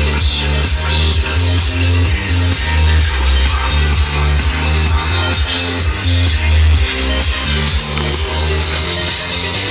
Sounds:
music, inside a large room or hall

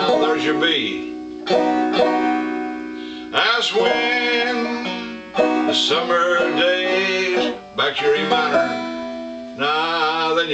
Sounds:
musical instrument, acoustic guitar, banjo, music, speech, plucked string instrument

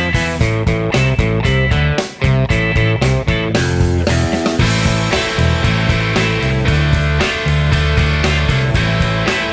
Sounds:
music, guitar, playing electric guitar, plucked string instrument, strum, electric guitar, musical instrument

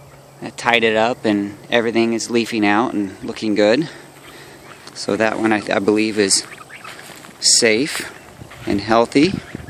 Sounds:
outside, rural or natural, speech

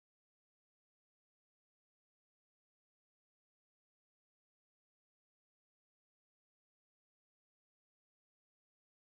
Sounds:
silence

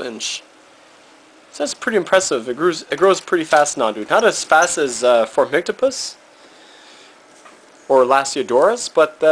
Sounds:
inside a small room, speech

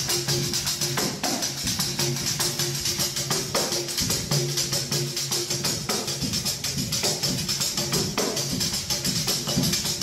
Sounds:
inside a large room or hall, music

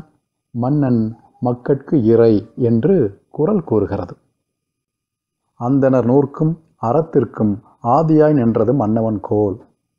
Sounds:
monologue, man speaking

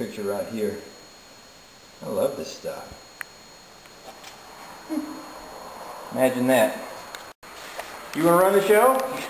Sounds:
speech, inside a small room

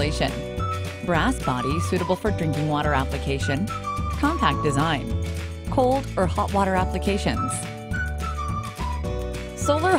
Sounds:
music, speech

